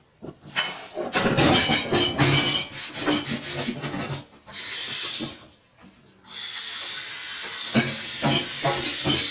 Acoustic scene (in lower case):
kitchen